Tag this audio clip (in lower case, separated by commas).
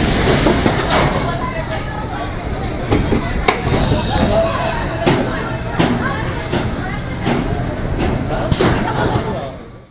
thwack